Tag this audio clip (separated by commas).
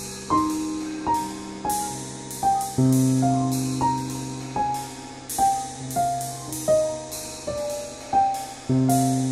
playing piano, Musical instrument, Piano, Music, New-age music